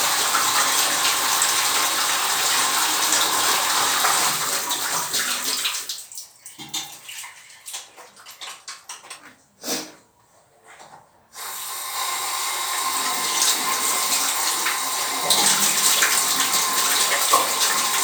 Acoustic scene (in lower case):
restroom